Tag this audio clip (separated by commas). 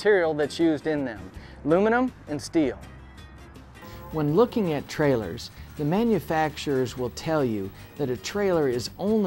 Music, Speech